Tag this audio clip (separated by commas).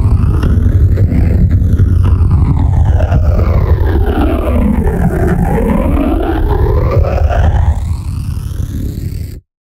Music, Television